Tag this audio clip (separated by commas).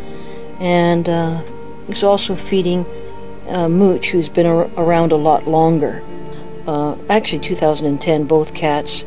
Speech, Music